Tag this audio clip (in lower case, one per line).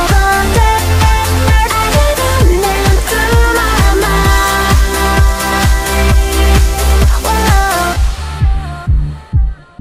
singing
pop music
music
electronic music